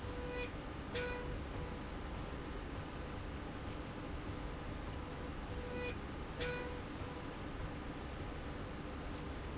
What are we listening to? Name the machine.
slide rail